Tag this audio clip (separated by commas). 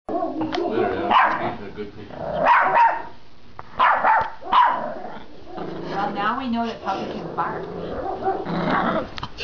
Domestic animals, Animal, Bark, Yip, Speech, Dog